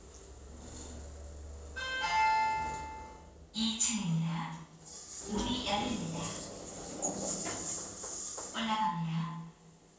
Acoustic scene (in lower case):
elevator